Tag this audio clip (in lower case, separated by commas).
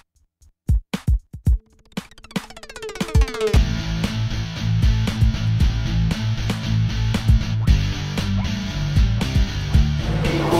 drum machine, music